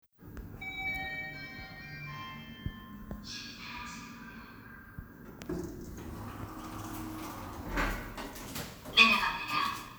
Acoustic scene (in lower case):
elevator